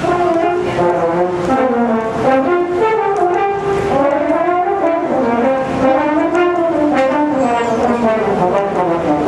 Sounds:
brass instrument, french horn, playing french horn

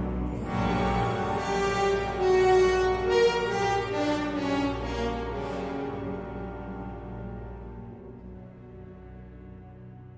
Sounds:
electric piano, keyboard (musical)

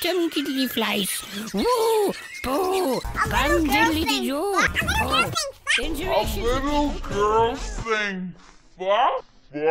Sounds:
music, speech

